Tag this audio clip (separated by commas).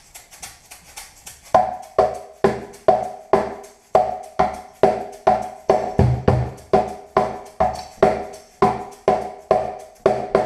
Percussion